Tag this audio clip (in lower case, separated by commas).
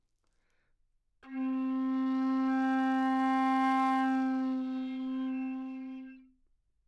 music, musical instrument, wind instrument